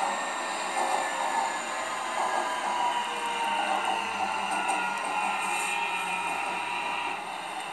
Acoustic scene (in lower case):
subway train